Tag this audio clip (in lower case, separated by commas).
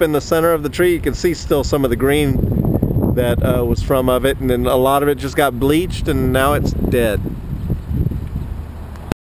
speech